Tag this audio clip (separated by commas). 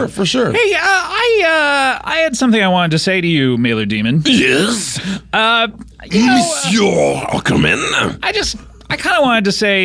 Speech